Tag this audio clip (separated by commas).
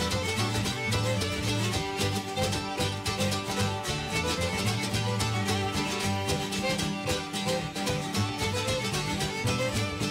Bluegrass, Guitar, Musical instrument, Plucked string instrument, Music